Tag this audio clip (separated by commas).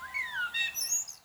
Animal, Wild animals, Bird